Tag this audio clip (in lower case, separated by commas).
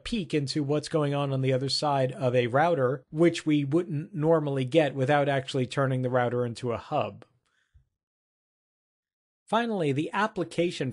speech